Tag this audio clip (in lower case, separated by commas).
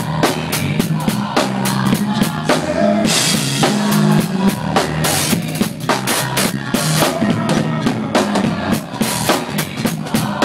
music